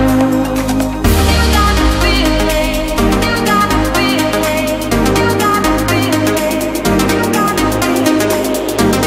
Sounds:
electronica
music

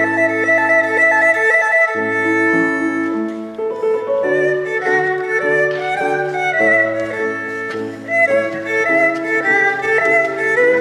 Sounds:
fiddle
music
musical instrument

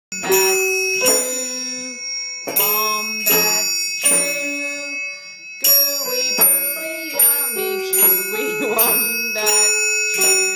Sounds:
musical instrument
music
inside a small room

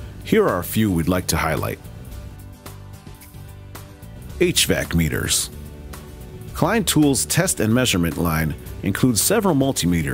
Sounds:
speech
music

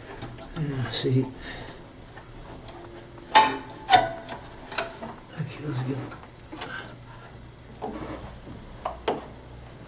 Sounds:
inside a small room
speech

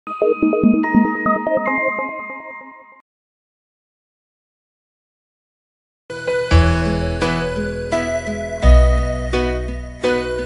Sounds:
music

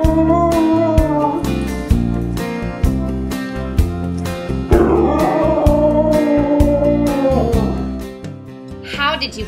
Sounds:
speech
music
yip

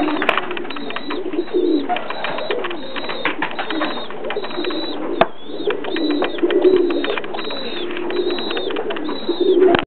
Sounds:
animal
dove

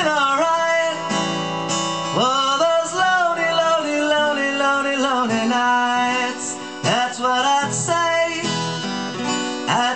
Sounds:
music

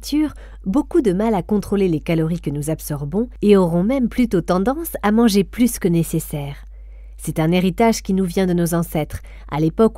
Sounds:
speech

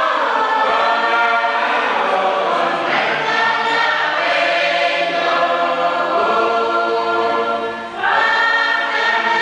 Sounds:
music

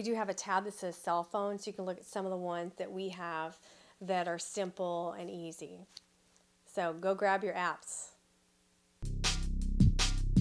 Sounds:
speech
music

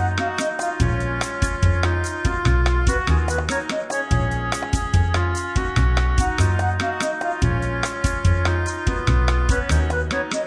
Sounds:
music

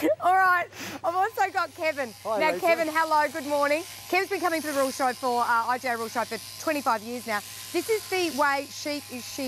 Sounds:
speech

